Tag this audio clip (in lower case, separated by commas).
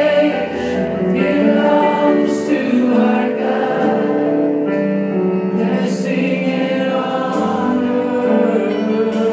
music